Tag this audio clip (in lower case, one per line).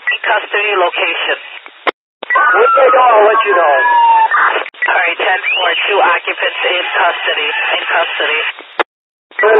police radio chatter